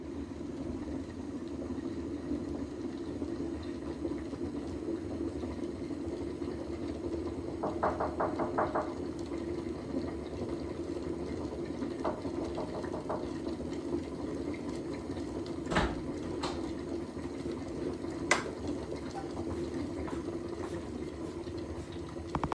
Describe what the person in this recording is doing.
I knocked on the door while the coffee machine was running, then opened the door and went to the coffee machine.